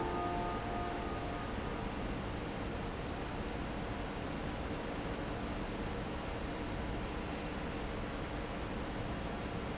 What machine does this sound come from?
fan